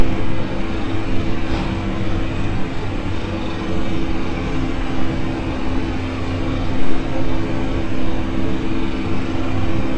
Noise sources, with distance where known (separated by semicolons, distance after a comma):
unidentified impact machinery, near